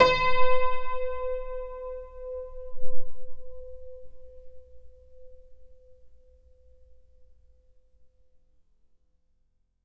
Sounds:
Musical instrument, Music, Keyboard (musical), Piano

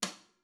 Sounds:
Musical instrument, Snare drum, Drum, Music, Percussion

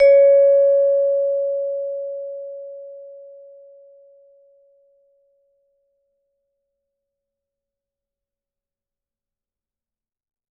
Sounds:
Mallet percussion, Music, Percussion, Musical instrument

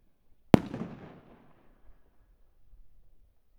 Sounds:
Explosion, Fireworks

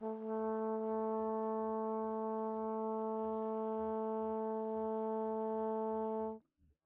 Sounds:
Music, Musical instrument, Brass instrument

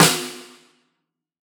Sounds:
Percussion, Snare drum, Music, Musical instrument, Drum

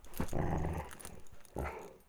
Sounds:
Growling, Dog, pets, Animal

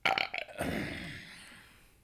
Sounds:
eructation

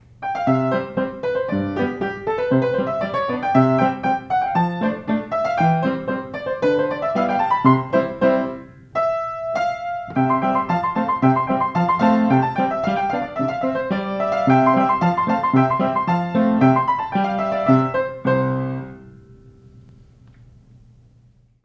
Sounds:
Musical instrument, Keyboard (musical), Piano, Music

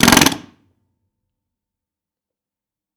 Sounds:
Tools

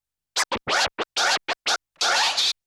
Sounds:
Musical instrument, Scratching (performance technique), Music

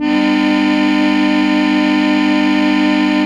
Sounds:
Musical instrument, Organ, Keyboard (musical), Music

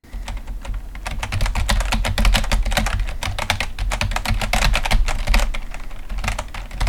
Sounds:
Computer keyboard, home sounds, Typing

